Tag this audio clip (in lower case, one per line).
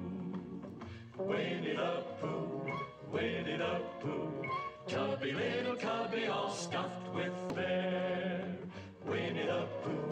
music